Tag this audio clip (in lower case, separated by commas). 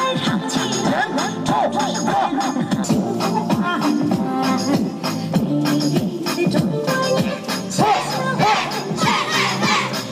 people shuffling